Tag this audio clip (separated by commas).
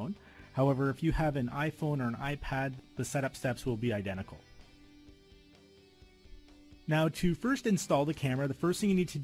Speech, Music